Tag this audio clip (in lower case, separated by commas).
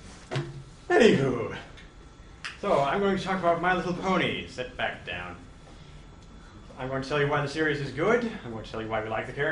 speech, male speech, narration